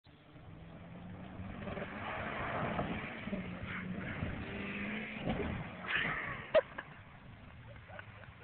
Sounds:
car, vehicle, car passing by

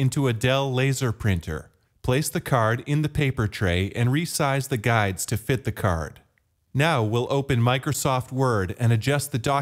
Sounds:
speech

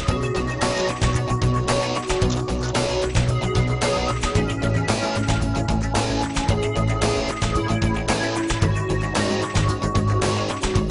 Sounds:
music

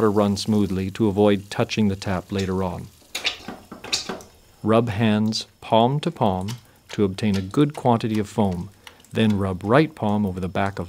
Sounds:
water, hands, speech

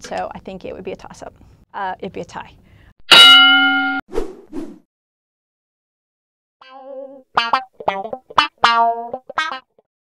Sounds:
female speech, music, speech

